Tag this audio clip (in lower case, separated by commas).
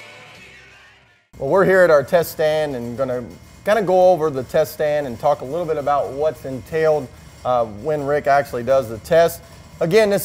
music, speech